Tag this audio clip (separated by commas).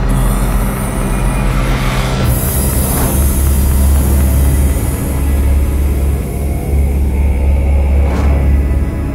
Scary music, Music